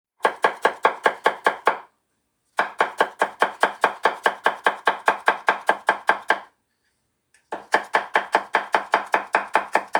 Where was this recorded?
in a kitchen